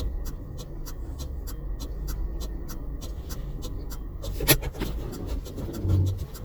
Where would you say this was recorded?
in a car